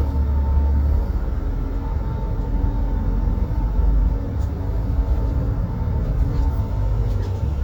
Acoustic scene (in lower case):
bus